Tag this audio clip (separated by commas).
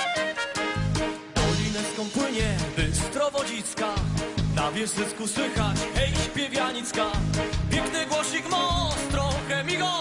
Music